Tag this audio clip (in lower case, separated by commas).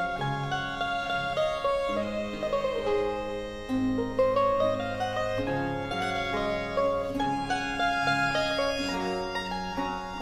orchestra, fiddle, music, musical instrument, mandolin, bowed string instrument, classical music